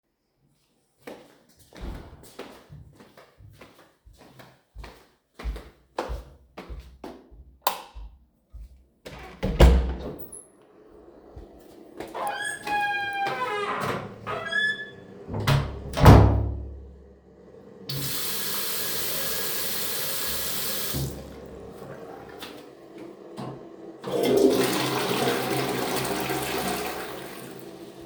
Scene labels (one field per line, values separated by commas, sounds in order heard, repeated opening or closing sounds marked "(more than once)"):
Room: lavatory, hallway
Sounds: footsteps, light switch, door (more than once), running water, toilet flushing